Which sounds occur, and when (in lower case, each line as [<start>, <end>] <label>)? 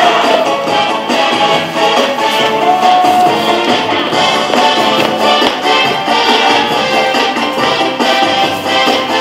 [0.00, 9.20] music
[0.25, 0.67] human voice
[2.65, 3.15] human voice
[4.45, 4.59] tap
[4.96, 5.09] tap
[5.40, 5.55] tap